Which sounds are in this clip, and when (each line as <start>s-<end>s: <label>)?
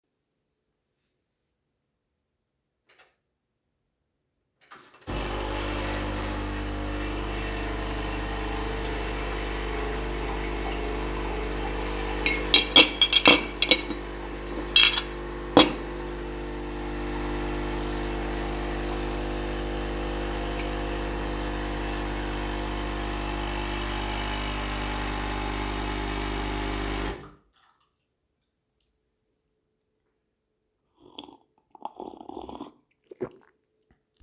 2.9s-3.2s: coffee machine
4.6s-27.4s: coffee machine
12.2s-15.8s: cutlery and dishes